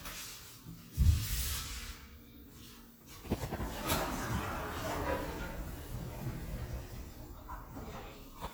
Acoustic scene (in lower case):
elevator